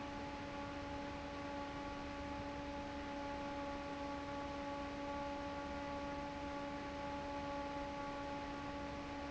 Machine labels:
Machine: fan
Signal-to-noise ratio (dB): 6 dB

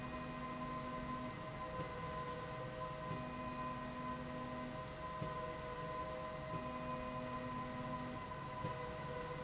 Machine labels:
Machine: slide rail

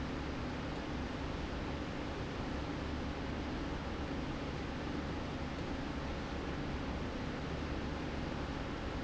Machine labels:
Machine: slide rail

